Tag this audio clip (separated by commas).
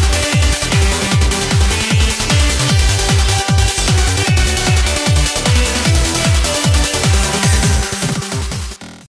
Music, Exciting music